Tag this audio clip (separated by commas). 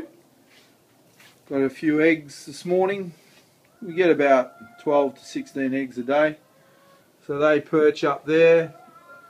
Speech